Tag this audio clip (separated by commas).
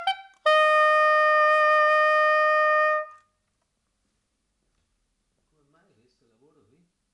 Wind instrument, Music, Musical instrument